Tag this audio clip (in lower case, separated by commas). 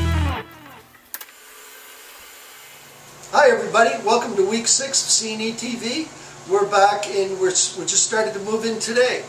music, speech